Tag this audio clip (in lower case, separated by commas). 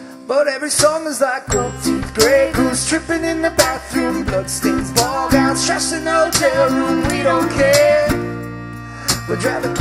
music